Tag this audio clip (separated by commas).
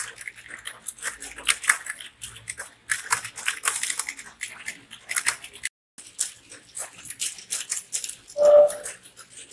typing on computer keyboard